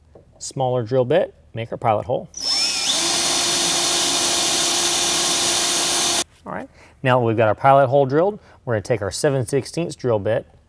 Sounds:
Drill, Power tool, Tools

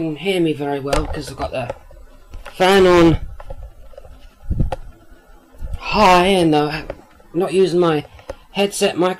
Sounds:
Speech

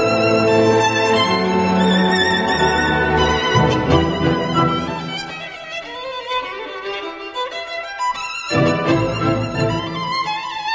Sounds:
Music, Violin, Musical instrument

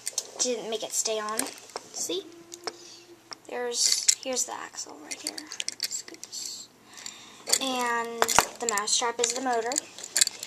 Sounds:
Speech

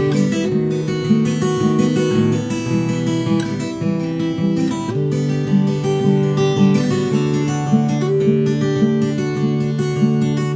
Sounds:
Music, Acoustic guitar

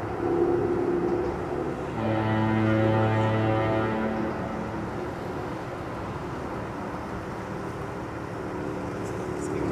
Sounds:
outside, rural or natural, Speech, Foghorn, car horn

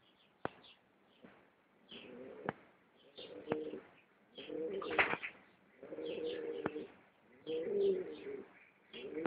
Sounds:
Bird, Pigeon

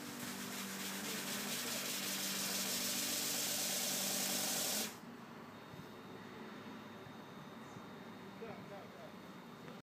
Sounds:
Speech

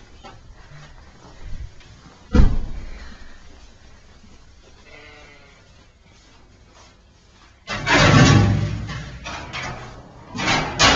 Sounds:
Sheep, Bleat

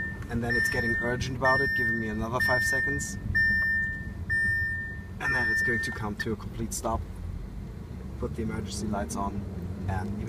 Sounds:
Vehicle, Car

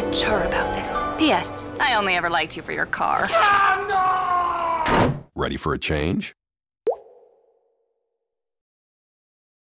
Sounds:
Speech, Music

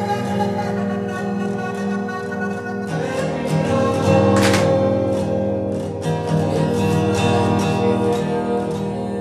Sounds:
Music

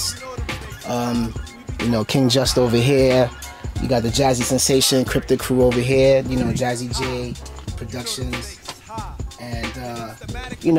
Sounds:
Hip hop music, Music

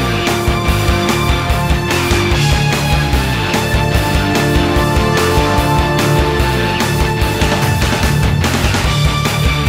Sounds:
Music, Angry music

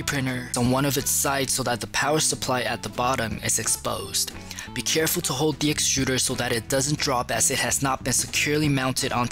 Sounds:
Music, Speech

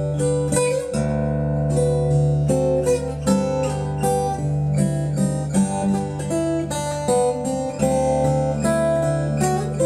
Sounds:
Music, Plucked string instrument, Guitar, Strum, Musical instrument, Acoustic guitar, Bass guitar

